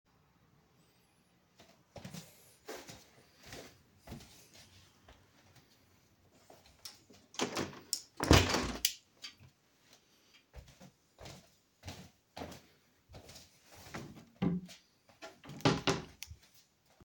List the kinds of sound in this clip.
footsteps, window, wardrobe or drawer